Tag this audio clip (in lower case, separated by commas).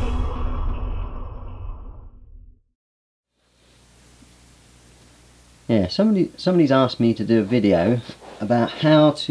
music, speech